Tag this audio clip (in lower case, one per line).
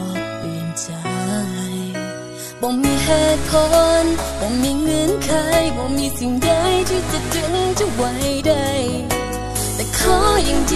music